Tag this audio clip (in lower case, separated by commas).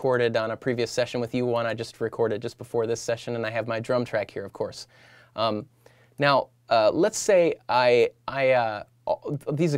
speech